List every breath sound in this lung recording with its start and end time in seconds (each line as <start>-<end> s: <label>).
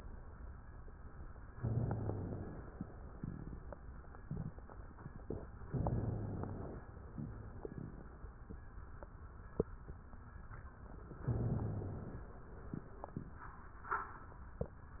1.50-2.77 s: inhalation
5.69-6.96 s: inhalation
11.23-12.39 s: inhalation